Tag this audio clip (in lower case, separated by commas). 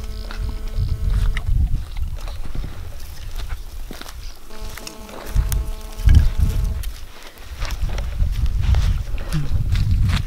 cheetah chirrup